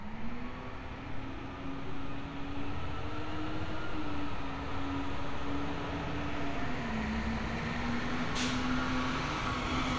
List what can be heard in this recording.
large-sounding engine